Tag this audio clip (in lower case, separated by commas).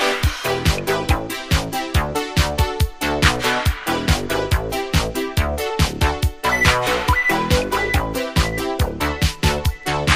music